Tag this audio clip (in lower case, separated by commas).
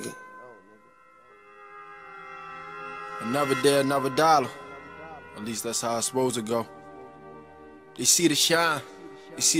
speech, music